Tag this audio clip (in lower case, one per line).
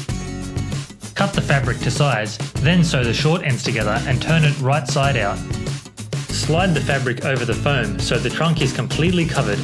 music
speech